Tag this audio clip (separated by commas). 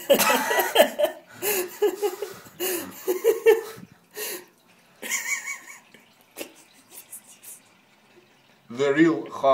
Speech, Water, faucet, Tap